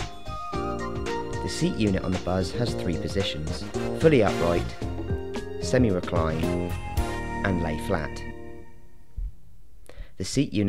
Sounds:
Music, Speech

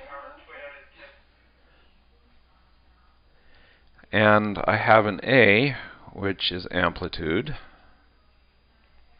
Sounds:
Speech

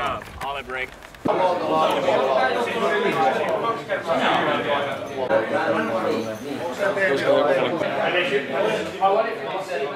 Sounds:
Speech

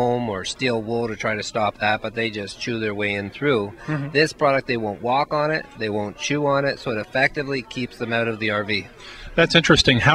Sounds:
Speech

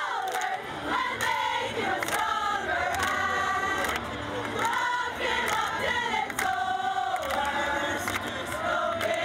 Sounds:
Choir, Female singing, Male singing

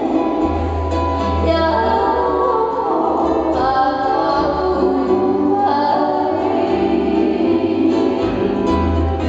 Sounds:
Music, Musical instrument, Singing, Choir

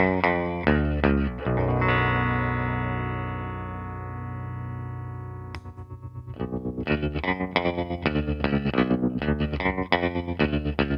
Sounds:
Effects unit, Music

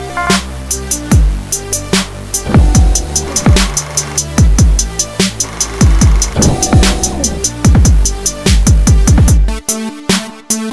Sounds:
Music

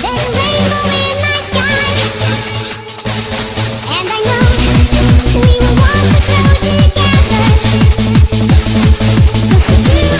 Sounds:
Techno, Electronic music, Music

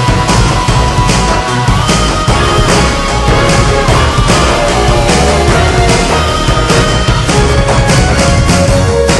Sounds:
Music

